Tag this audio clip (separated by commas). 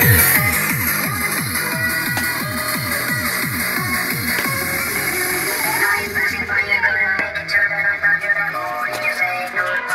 Music